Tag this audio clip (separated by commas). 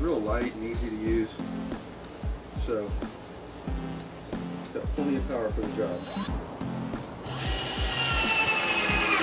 Speech, Music